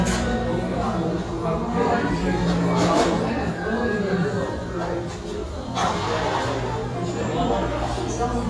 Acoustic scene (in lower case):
restaurant